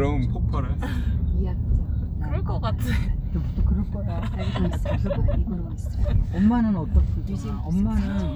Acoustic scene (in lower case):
car